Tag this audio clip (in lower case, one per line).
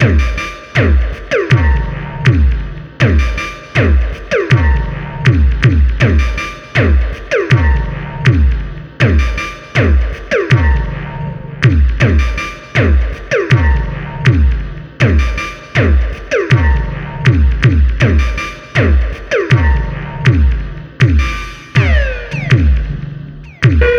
music
drum kit
percussion
musical instrument